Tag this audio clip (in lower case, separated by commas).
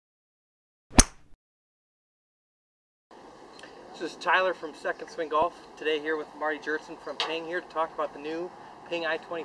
speech